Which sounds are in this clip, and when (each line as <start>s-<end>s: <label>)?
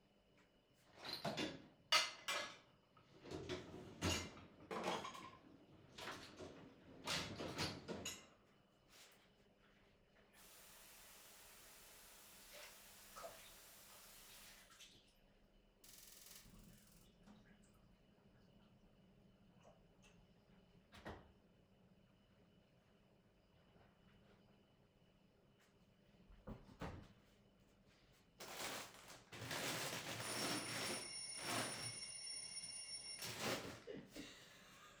1.0s-9.4s: cutlery and dishes
10.3s-15.1s: running water
30.1s-33.8s: bell ringing